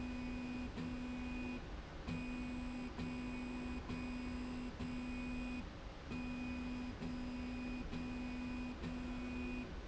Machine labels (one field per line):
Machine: slide rail